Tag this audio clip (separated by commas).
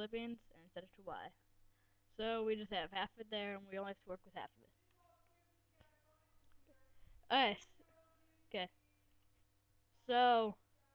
Speech